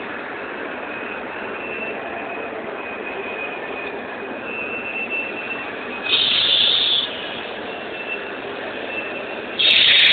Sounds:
Train, Vehicle, Rail transport, Railroad car

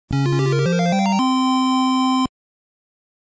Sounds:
Music, Video game music

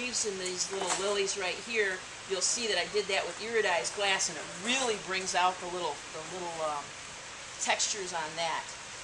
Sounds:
Speech

